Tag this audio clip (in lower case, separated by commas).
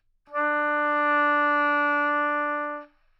woodwind instrument, musical instrument, music